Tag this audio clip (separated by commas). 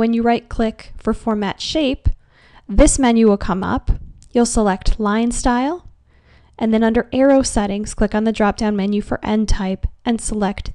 Speech